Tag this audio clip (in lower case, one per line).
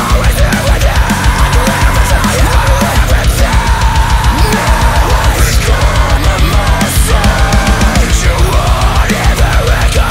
blues
music